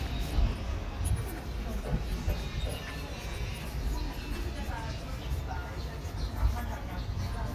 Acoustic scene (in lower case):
park